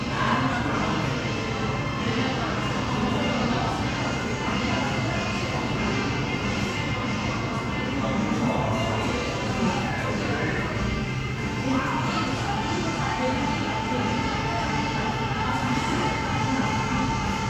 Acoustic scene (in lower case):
crowded indoor space